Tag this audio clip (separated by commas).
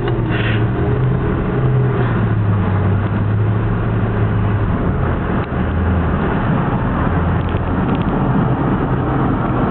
Accelerating, Vehicle